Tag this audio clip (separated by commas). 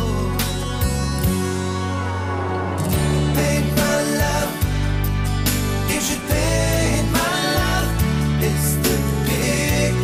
Music